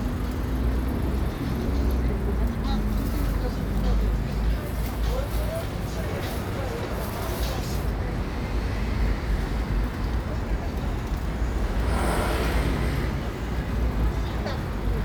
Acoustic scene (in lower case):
street